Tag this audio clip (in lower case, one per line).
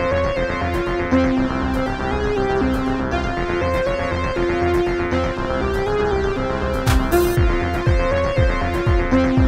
music